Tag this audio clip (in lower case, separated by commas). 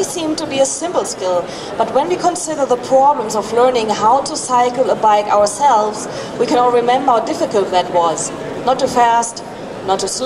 speech